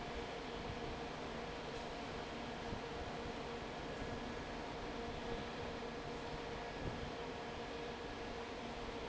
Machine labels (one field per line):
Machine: fan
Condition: normal